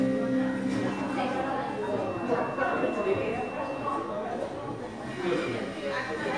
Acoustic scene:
crowded indoor space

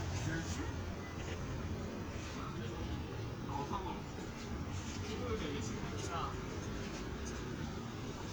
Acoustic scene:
street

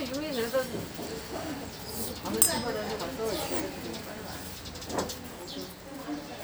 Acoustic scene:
restaurant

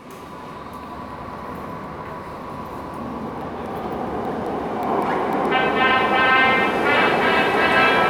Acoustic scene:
subway station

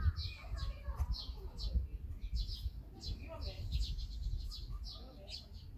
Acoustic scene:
park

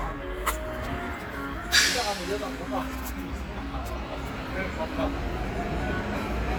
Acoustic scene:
residential area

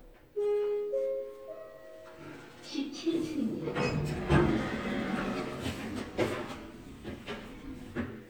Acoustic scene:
elevator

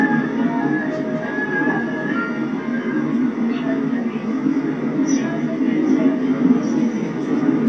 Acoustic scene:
subway train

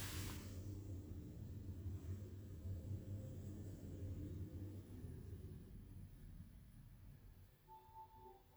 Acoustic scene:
elevator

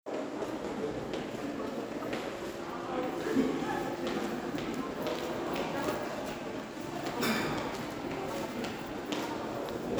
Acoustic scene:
crowded indoor space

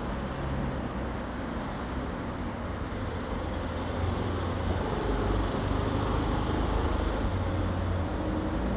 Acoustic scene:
residential area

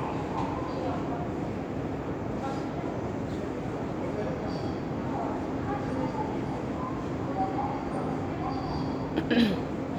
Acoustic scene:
subway station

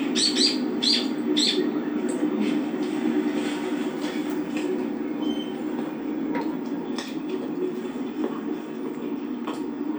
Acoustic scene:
park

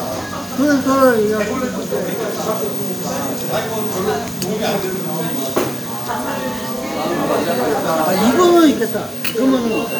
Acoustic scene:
crowded indoor space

